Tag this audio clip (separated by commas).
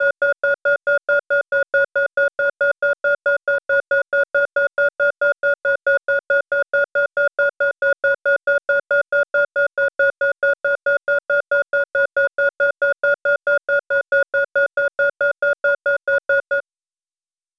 Musical instrument, Music, Alarm, Keyboard (musical)